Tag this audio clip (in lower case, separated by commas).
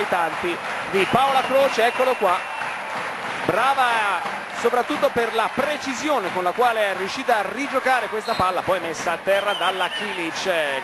speech